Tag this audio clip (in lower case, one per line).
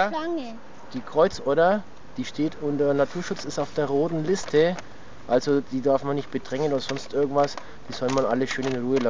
speech
outside, rural or natural